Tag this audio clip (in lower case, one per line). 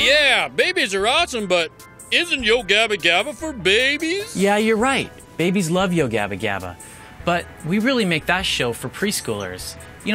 speech
music